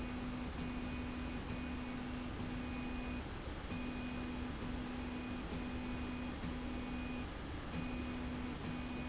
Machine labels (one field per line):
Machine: slide rail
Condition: normal